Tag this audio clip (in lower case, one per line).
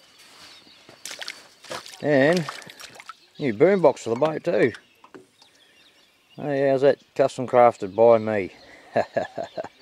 speech